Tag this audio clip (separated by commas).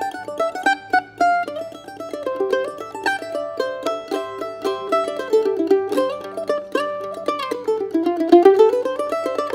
playing mandolin